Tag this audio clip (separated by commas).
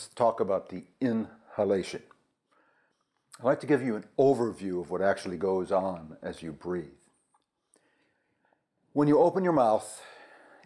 Speech